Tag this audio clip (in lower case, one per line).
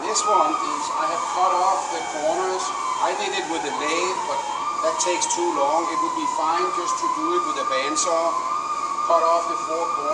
speech